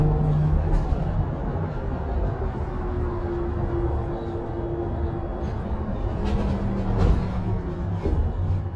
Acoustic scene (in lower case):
bus